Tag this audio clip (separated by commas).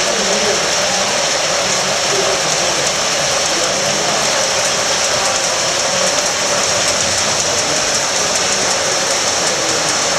Speech, Vehicle